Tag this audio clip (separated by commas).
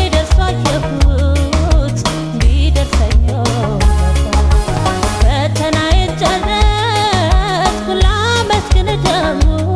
Music, Soundtrack music